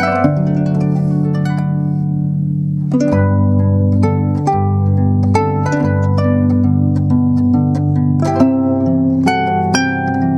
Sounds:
harp
music
playing harp

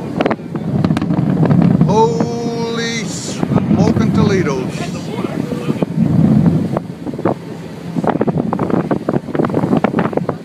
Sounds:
volcano explosion

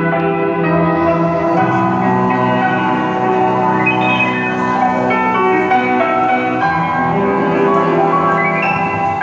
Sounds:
mallet percussion
glockenspiel
xylophone

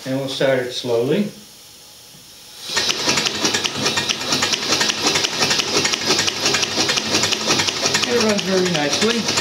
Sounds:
speech

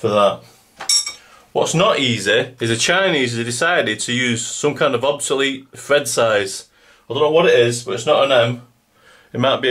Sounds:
speech

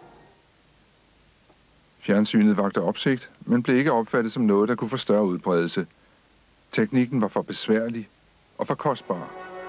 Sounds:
music
speech

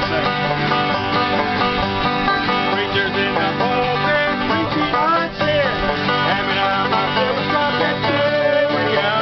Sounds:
musical instrument
music

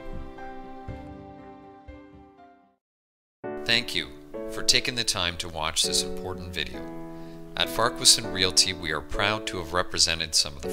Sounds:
monologue

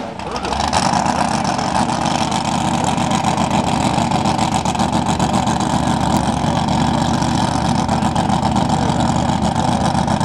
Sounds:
speech
vehicle
speedboat
water vehicle

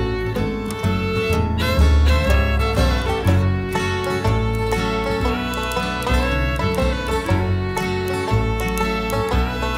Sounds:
music

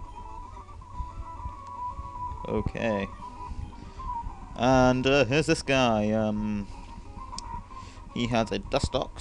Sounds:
speech

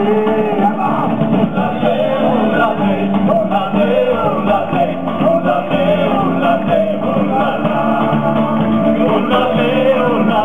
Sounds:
male singing
music
singing
inside a large room or hall
orchestra

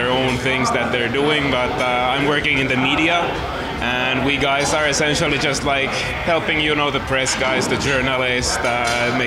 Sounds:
speech

